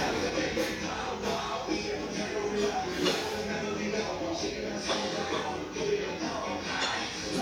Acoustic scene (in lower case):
restaurant